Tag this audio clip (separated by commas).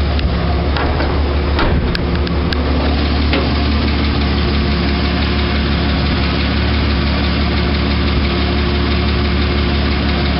Vehicle